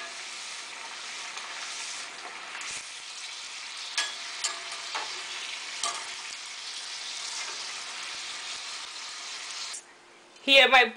Food sizzling and metal utensils hitting against a grill